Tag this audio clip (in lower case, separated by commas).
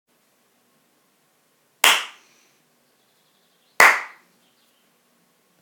animal, clapping, hands, tweet, wild animals, bird song, bird